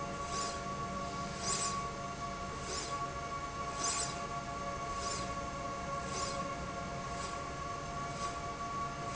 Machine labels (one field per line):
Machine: slide rail